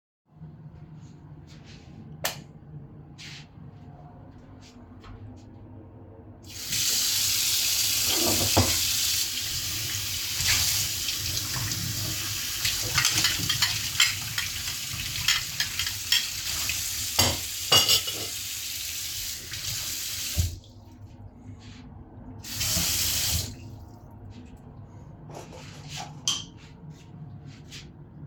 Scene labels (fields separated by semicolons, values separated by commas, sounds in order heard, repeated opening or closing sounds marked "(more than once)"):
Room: kitchen; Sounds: light switch, running water, cutlery and dishes